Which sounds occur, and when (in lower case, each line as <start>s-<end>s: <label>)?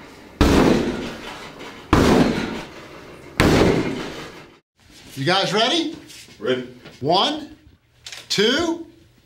0.0s-0.3s: generic impact sounds
0.0s-4.6s: mechanisms
0.4s-1.1s: thud
1.0s-1.8s: generic impact sounds
1.9s-2.7s: thud
2.7s-3.2s: generic impact sounds
3.4s-4.2s: thud
4.0s-4.4s: generic impact sounds
4.8s-9.2s: mechanisms
4.8s-5.2s: generic impact sounds
5.1s-5.9s: man speaking
5.2s-9.2s: conversation
5.9s-6.4s: generic impact sounds
6.4s-6.7s: man speaking
6.7s-7.0s: generic impact sounds
7.0s-7.6s: man speaking
8.1s-8.3s: generic impact sounds
8.3s-8.9s: man speaking
8.9s-9.2s: generic impact sounds